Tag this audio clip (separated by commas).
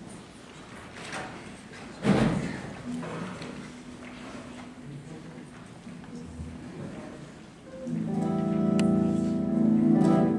Bass guitar, Speech, Music, Musical instrument, Guitar, Plucked string instrument, Strum